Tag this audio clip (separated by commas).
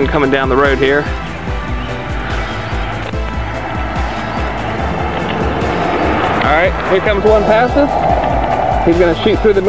Vehicle, Motor vehicle (road), Music, Speech, Car